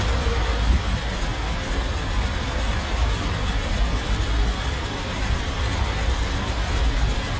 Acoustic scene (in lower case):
street